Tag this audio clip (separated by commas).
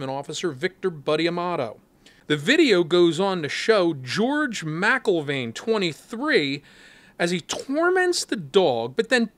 Speech